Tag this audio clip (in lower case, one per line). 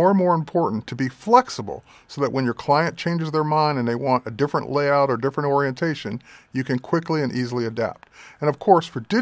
speech